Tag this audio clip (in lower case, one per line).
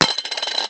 coin (dropping)
domestic sounds